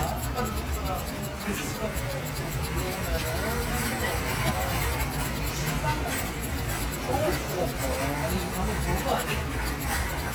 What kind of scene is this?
crowded indoor space